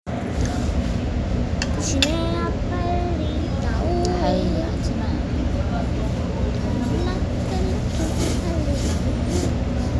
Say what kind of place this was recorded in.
restaurant